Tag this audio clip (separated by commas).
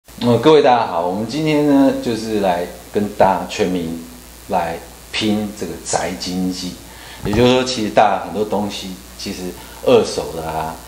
Speech